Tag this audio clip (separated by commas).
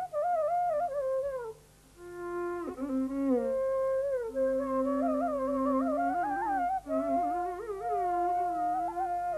Music, Flute